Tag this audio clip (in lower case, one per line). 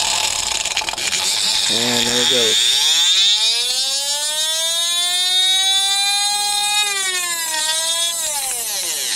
speech